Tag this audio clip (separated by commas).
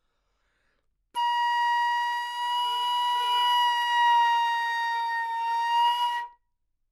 woodwind instrument, Music, Musical instrument